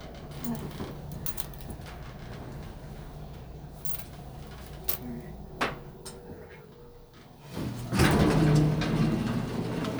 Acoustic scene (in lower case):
elevator